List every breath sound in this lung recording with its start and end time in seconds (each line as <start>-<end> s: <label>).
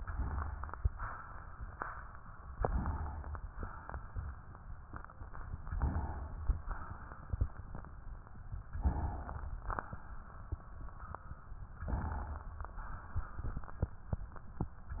2.52-3.39 s: inhalation
3.39-4.37 s: exhalation
5.72-6.61 s: inhalation
6.58-7.54 s: exhalation
8.74-9.60 s: inhalation
9.59-10.49 s: exhalation
11.81-12.70 s: inhalation
12.72-13.87 s: exhalation